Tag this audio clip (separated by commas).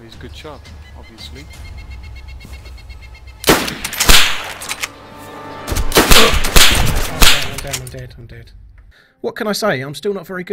Music, Speech